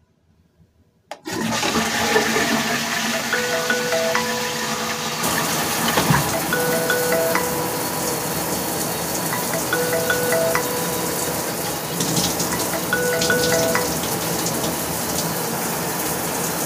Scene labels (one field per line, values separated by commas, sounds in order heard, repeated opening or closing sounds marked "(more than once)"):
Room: bathroom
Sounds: toilet flushing, phone ringing, running water